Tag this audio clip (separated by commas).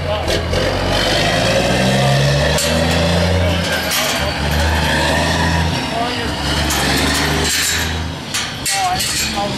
Vehicle, Truck, Speech